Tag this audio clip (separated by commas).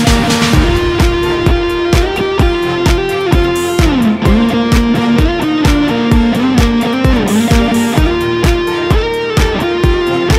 Musical instrument, Plucked string instrument, Strum, Guitar, Electric guitar, Music